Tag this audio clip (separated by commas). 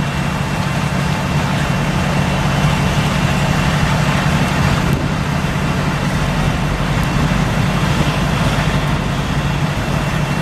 Truck, Vehicle